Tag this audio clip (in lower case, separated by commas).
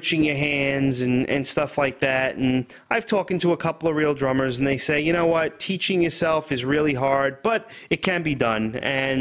speech